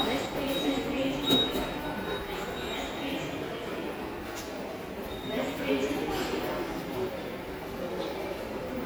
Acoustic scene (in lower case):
subway station